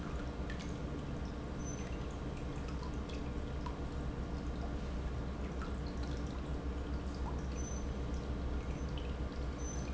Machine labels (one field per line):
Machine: pump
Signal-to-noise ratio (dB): -6 dB